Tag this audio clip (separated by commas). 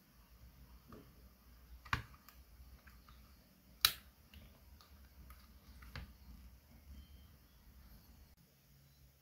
typing on computer keyboard